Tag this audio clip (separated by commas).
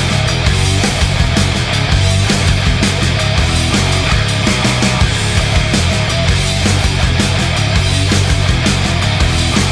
Music